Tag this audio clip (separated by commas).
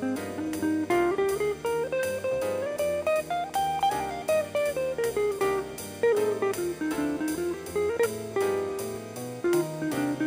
Electric guitar, Guitar, Musical instrument, Plucked string instrument, Strum, Acoustic guitar, Music